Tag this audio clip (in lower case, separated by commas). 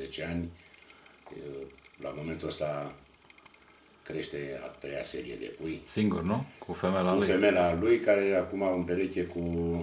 speech, inside a small room, bird